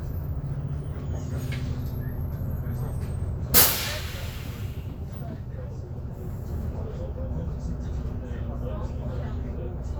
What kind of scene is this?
bus